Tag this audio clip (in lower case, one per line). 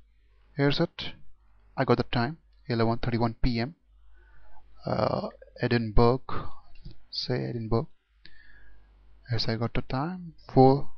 speech